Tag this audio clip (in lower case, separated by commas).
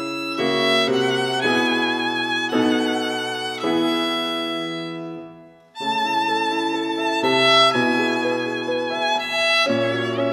violin, music, musical instrument